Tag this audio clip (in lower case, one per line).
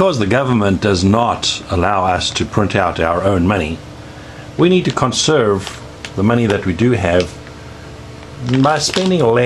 speech